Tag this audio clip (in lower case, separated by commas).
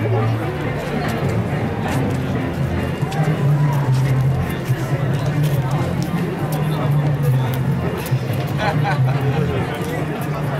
music, speech